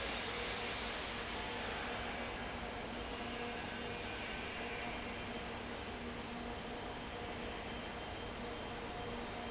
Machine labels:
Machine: fan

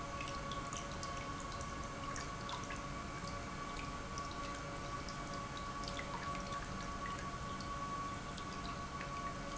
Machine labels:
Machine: pump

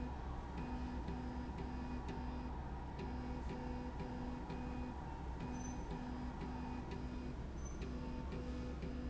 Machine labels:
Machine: slide rail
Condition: normal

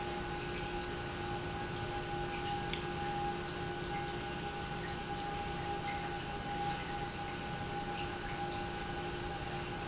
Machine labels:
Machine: pump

